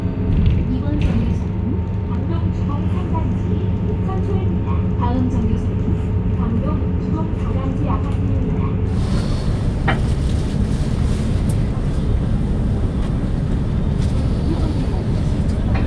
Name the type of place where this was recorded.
bus